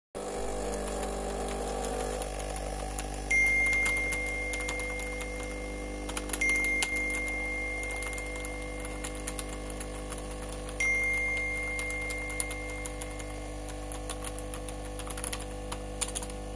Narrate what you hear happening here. I typed on the keyboard while preparing coffee using the coffee machine. During this time a notification sound from my phone was heard.